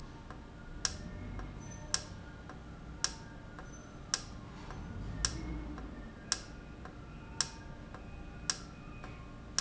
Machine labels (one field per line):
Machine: valve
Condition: normal